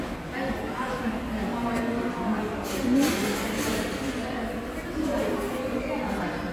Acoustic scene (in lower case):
subway station